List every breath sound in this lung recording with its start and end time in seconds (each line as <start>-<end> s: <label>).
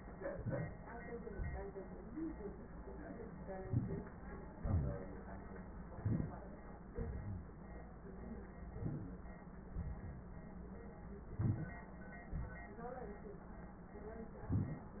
0.32-0.70 s: inhalation
1.31-1.69 s: exhalation
3.64-4.06 s: inhalation
4.63-5.09 s: exhalation
6.03-6.49 s: inhalation
6.93-7.46 s: exhalation
8.69-9.22 s: inhalation
9.83-10.36 s: exhalation
11.33-11.86 s: inhalation
12.31-12.79 s: exhalation